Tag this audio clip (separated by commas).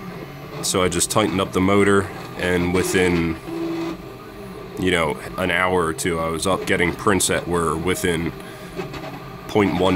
Printer, Music, Speech